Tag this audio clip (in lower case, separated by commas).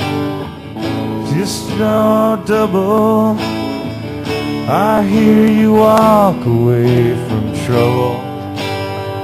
music